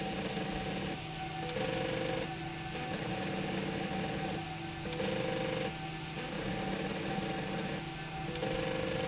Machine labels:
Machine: slide rail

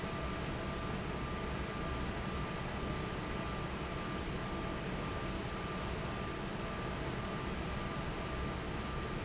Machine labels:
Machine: fan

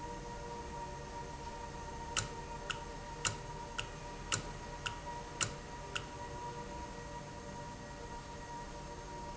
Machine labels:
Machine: valve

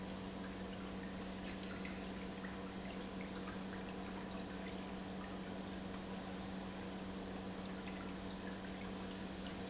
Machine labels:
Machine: pump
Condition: normal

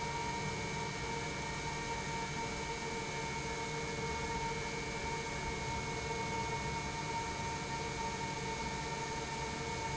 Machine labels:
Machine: pump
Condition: normal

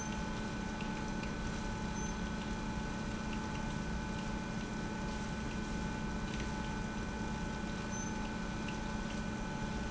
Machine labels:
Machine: pump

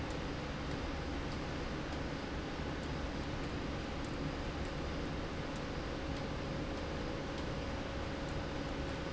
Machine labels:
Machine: slide rail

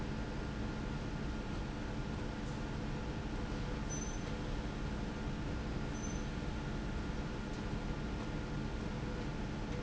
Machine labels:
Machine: slide rail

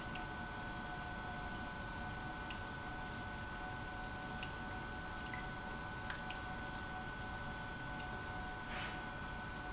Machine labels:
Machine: pump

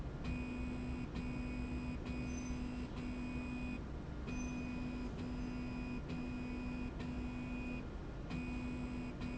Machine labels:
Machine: slide rail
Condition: normal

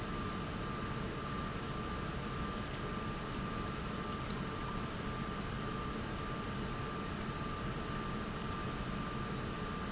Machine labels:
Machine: pump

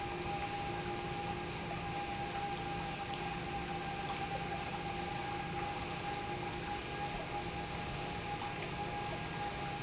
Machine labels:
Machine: pump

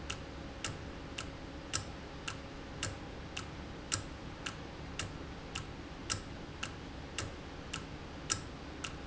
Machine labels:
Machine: valve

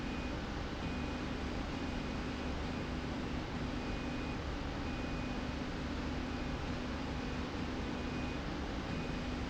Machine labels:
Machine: slide rail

